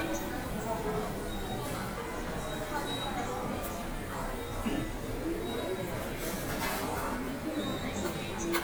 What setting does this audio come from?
subway station